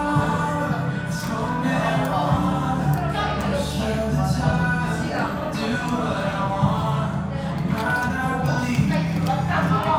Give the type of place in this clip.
cafe